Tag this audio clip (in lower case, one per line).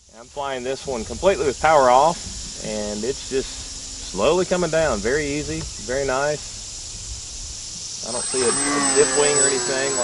speech